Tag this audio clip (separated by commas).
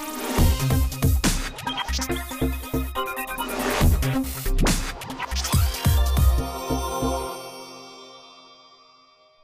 Music